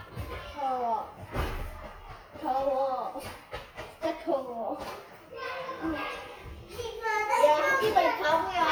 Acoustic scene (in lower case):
crowded indoor space